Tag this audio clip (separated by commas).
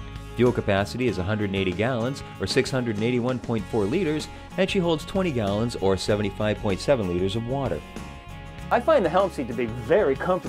Music, Speech